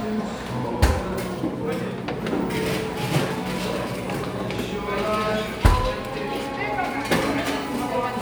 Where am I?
in a crowded indoor space